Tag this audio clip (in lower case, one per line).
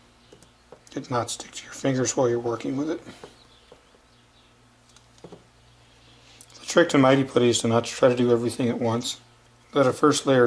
speech